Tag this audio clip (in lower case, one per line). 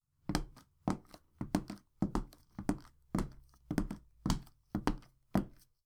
walk